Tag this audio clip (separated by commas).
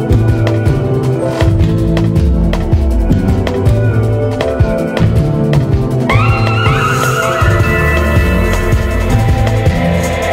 Soundtrack music, Music